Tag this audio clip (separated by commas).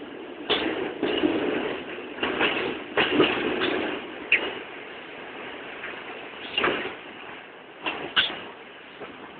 Vehicle